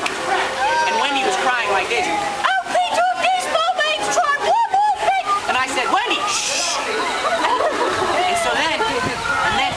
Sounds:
Speech, outside, urban or man-made

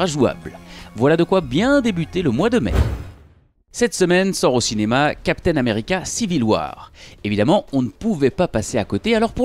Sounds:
Speech

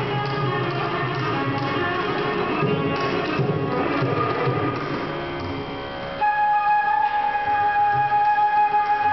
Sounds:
Independent music, Flute, Music

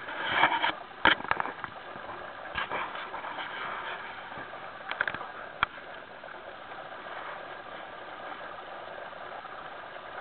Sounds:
Vehicle, Water vehicle

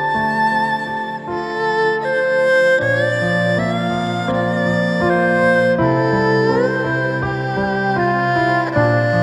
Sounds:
playing erhu

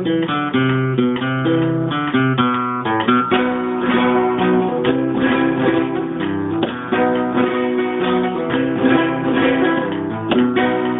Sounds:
Musical instrument, Plucked string instrument, Guitar, Music

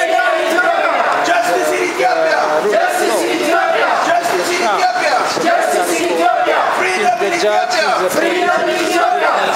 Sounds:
Speech

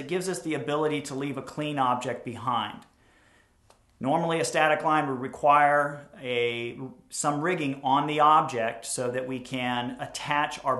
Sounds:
Speech

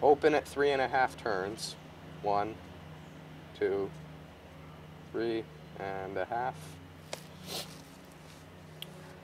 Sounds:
Speech

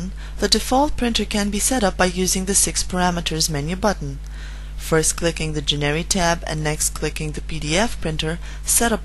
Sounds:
Speech

